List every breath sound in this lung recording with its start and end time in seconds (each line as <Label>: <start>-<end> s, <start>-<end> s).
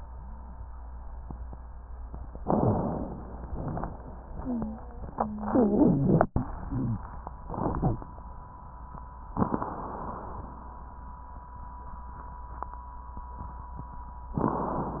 Inhalation: 2.39-3.44 s, 9.35-10.47 s
Wheeze: 4.33-6.26 s
Crackles: 2.39-3.44 s, 9.35-10.47 s